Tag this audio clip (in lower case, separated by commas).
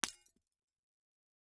glass, shatter